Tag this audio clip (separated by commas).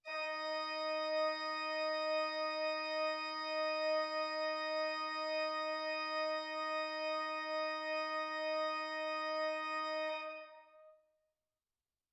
Organ, Music, Keyboard (musical), Musical instrument